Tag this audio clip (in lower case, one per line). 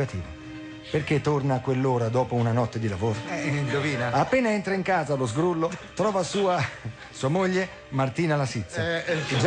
speech
music